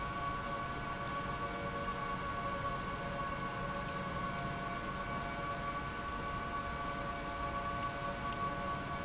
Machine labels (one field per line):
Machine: pump